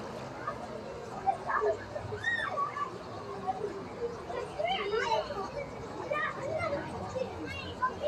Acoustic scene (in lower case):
park